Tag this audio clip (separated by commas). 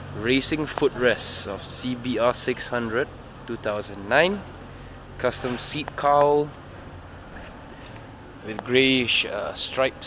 Speech, outside, urban or man-made